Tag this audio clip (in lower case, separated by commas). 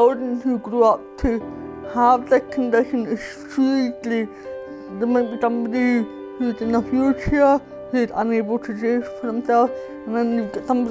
music, speech